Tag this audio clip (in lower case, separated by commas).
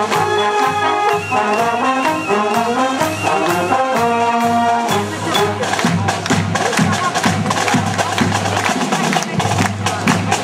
music